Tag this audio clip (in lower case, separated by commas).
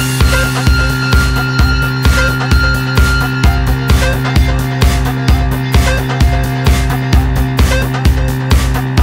music